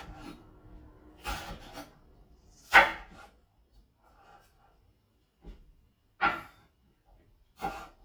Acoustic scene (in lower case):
kitchen